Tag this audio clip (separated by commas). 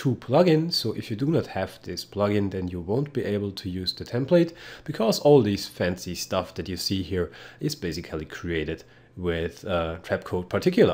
Speech